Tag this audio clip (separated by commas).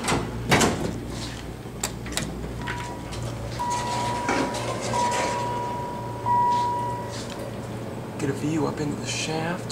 Sliding door, Speech